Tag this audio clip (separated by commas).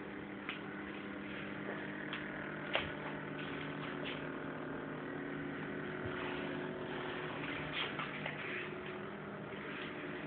speedboat, motorboat